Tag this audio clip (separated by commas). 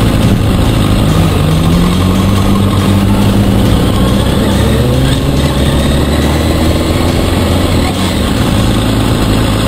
Race car, Car, Vehicle